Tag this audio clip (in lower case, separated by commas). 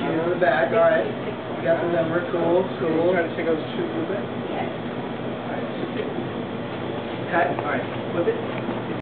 speech